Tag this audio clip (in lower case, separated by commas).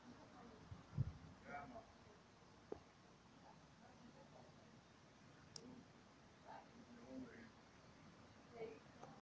speech